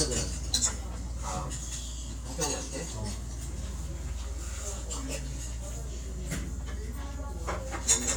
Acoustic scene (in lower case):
restaurant